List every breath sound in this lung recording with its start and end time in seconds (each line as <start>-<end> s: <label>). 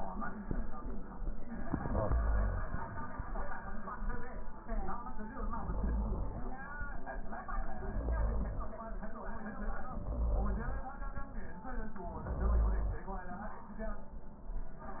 1.50-2.93 s: inhalation
5.26-6.69 s: inhalation
7.80-8.81 s: inhalation
9.93-10.94 s: inhalation
12.16-13.17 s: inhalation